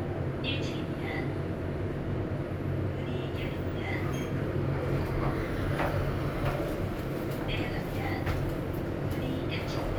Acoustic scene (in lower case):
elevator